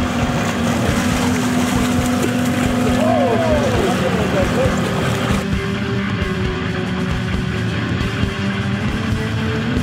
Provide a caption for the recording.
Some musical score playing in the background as men yell and water is splashed